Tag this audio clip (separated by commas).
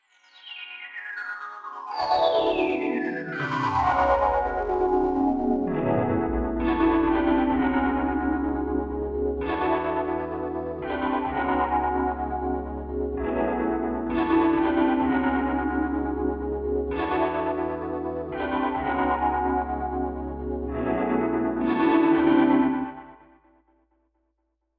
Music, Piano, Musical instrument, Keyboard (musical)